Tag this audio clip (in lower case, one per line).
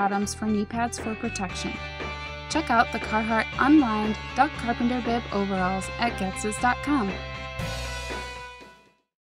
music
speech